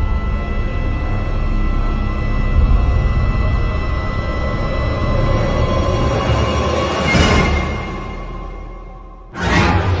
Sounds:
music

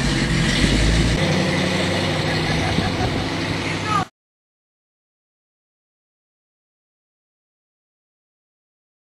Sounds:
speech, truck

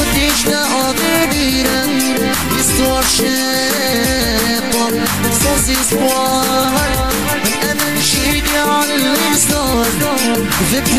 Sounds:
music, music of africa

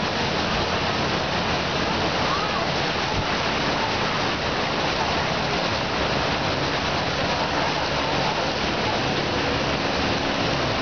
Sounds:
speech babble

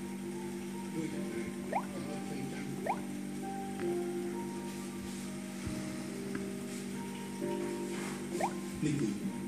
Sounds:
marimba, mallet percussion, glockenspiel

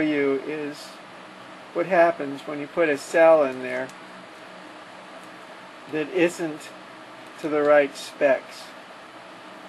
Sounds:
speech

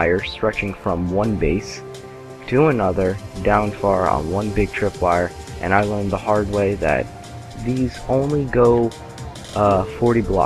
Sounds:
music, speech

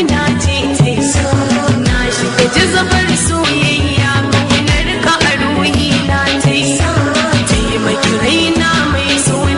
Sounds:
music

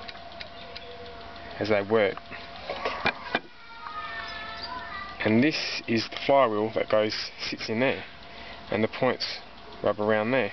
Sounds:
speech, engine

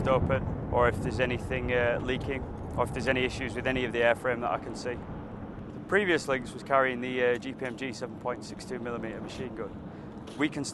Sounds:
speech

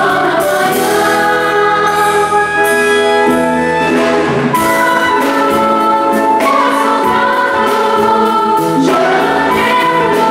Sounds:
orchestra, music, choir

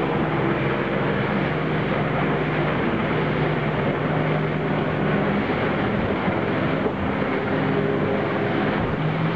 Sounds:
speedboat

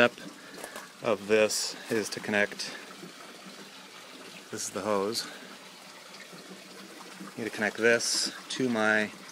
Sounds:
water

